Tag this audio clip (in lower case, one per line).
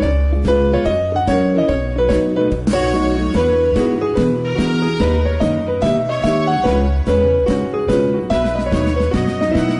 music